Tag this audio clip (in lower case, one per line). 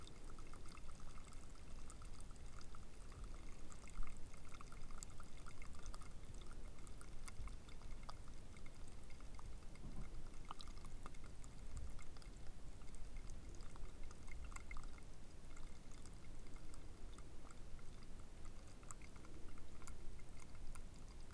dribble
liquid
pour